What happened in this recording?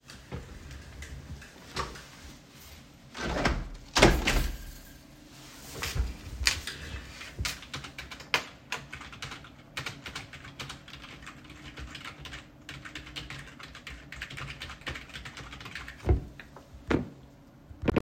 opened my window, then started writing on the keyboard